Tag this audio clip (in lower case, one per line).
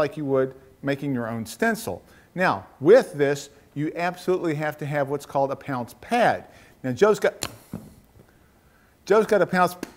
speech